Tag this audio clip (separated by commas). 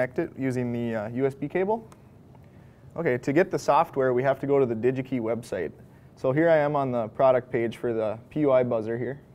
Speech